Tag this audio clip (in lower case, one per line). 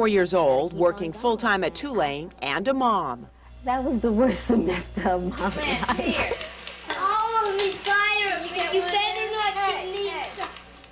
speech